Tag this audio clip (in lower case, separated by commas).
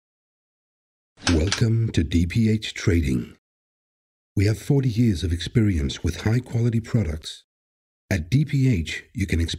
speech